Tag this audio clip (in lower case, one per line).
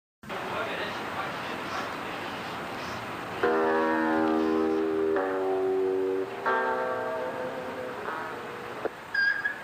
music
guitar
outside, urban or man-made
speech